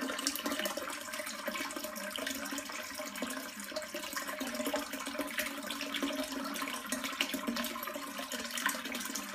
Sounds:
toilet flushing

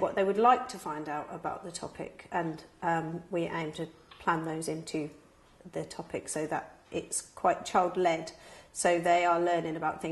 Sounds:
speech

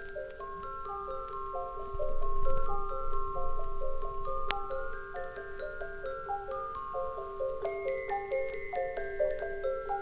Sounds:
music
glockenspiel
music for children

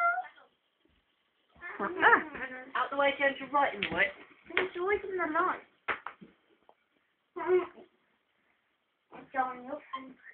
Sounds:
cat
speech

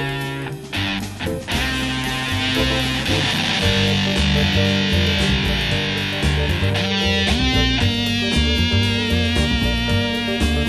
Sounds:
music

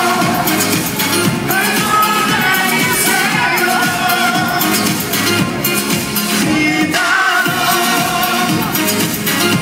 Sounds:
music
speech
disco

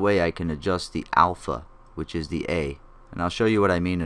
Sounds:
speech

